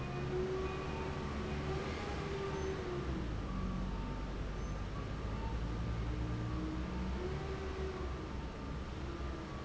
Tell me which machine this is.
fan